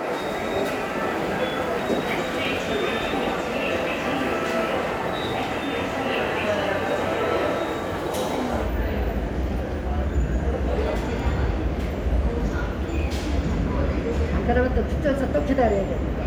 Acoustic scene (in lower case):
subway station